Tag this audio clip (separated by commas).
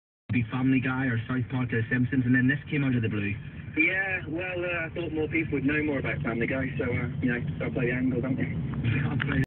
Speech, Vehicle